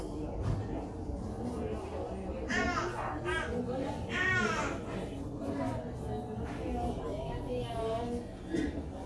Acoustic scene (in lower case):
crowded indoor space